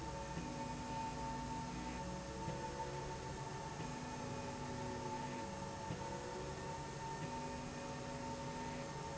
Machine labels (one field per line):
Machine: slide rail